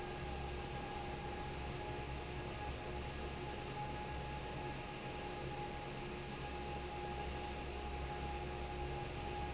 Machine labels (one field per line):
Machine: fan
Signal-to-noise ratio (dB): 0 dB